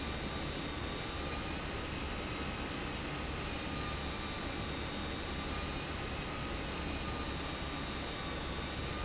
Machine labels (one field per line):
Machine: pump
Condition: abnormal